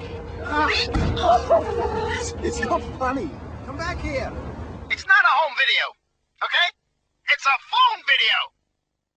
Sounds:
Speech

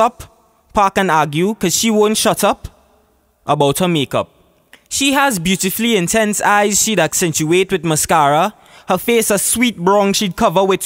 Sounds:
monologue, man speaking, Speech

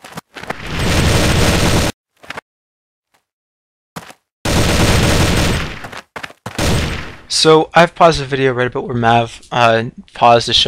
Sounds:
inside a small room, Speech

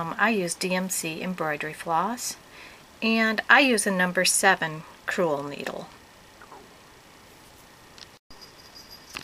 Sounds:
inside a small room, Speech

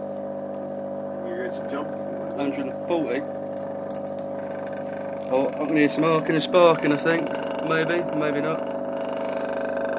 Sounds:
Water

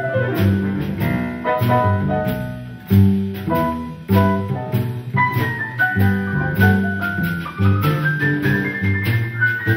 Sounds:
Music, Jazz, playing vibraphone, Vibraphone

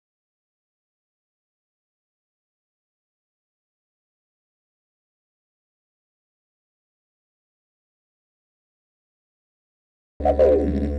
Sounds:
Silence

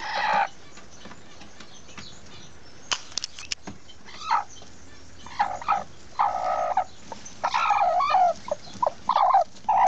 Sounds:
Bird

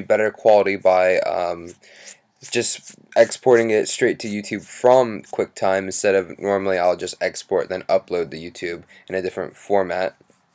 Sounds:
Speech

